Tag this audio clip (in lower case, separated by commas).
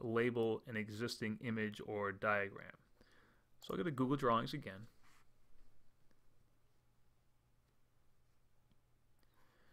speech